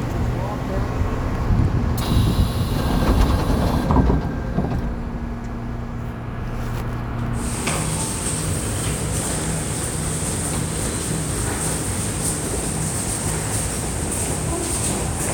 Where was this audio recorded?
in a subway station